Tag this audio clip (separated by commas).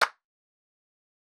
Clapping, Hands